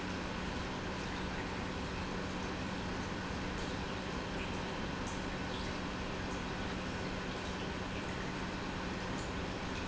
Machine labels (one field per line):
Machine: pump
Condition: normal